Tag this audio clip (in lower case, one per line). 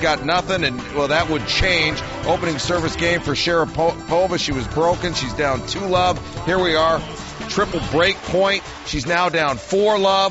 speech
music